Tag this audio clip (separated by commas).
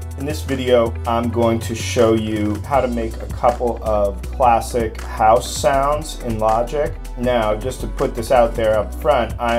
Speech, Music